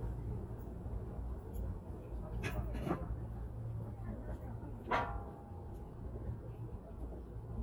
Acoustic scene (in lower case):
residential area